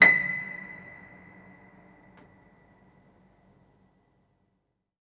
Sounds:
Music, Keyboard (musical), Piano, Musical instrument

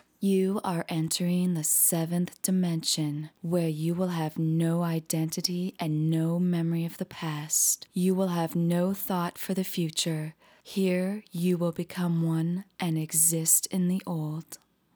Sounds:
Speech, woman speaking, Human voice

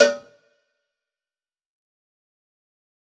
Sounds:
Cowbell, Bell

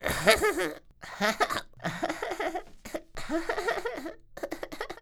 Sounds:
Laughter, Human voice

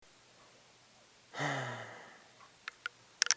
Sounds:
Respiratory sounds, Breathing, Sigh, Human voice

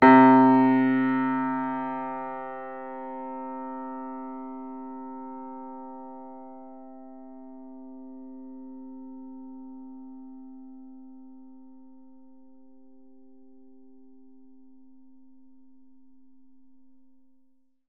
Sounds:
Music, Keyboard (musical), Piano, Musical instrument

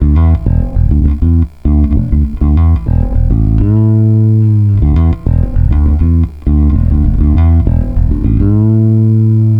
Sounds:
Music, Guitar, Musical instrument, Plucked string instrument, Bass guitar

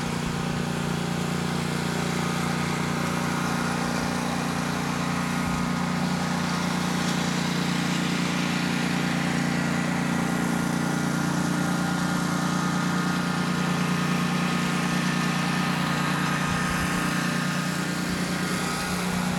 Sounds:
Engine

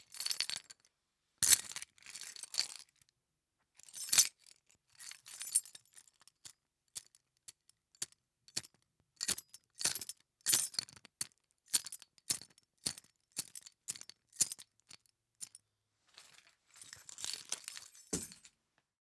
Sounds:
Keys jangling, home sounds

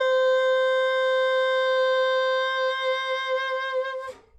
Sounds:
Musical instrument, Wind instrument, Music

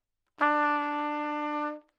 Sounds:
Music, Trumpet, Brass instrument, Musical instrument

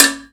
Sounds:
home sounds, dishes, pots and pans

